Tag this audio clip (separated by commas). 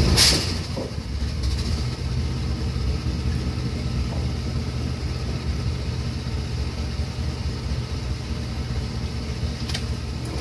Air brake, Vehicle